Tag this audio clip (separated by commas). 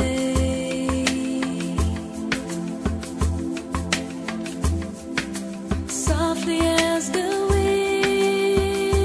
Music